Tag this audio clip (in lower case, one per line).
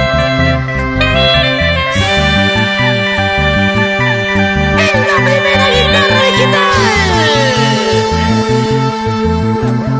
music